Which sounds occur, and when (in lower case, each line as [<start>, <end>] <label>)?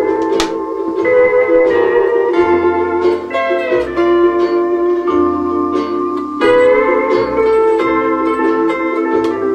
[0.00, 9.54] music
[0.15, 0.46] tick
[6.07, 6.24] tick
[9.17, 9.32] tick